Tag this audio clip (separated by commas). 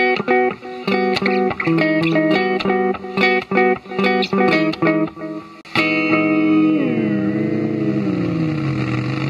Tapping (guitar technique), Music, Guitar